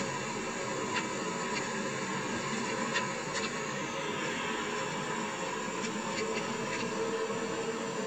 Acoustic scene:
car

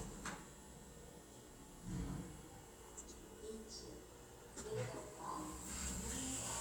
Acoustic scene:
elevator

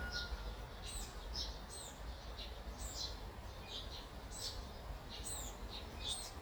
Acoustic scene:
park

